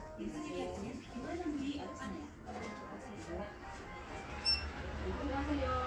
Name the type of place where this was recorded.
crowded indoor space